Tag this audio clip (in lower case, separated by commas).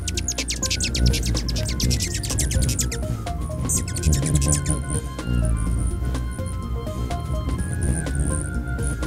music